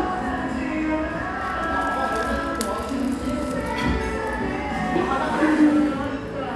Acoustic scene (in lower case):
cafe